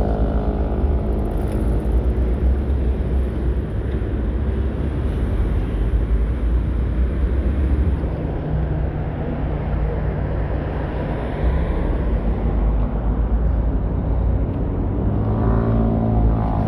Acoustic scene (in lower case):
street